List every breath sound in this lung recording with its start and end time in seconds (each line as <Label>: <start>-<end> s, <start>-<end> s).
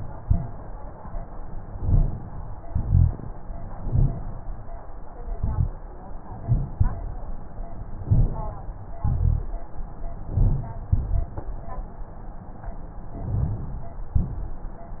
Inhalation: 1.67-2.56 s, 3.70-4.41 s, 5.24-5.85 s, 8.00-8.70 s, 10.32-10.87 s, 13.24-13.79 s
Exhalation: 2.64-3.34 s, 6.29-7.31 s, 8.95-9.57 s, 10.93-11.47 s, 14.18-14.72 s
Crackles: 3.80-4.20 s, 6.40-6.95 s, 8.06-8.53 s, 10.32-10.79 s, 10.89-11.36 s